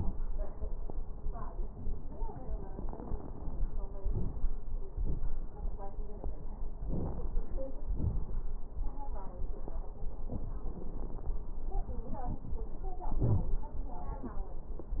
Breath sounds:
3.98-4.52 s: inhalation
3.98-4.52 s: crackles
4.94-5.49 s: exhalation
4.94-5.49 s: crackles
6.81-7.46 s: inhalation
6.81-7.46 s: crackles
7.88-8.53 s: exhalation
7.88-8.53 s: crackles
13.21-13.52 s: wheeze

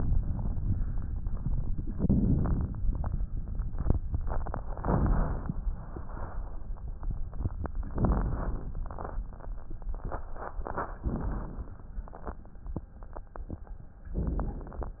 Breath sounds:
1.91-2.76 s: inhalation
4.80-5.65 s: inhalation
7.87-8.72 s: inhalation
7.87-8.72 s: crackles
11.04-11.89 s: inhalation

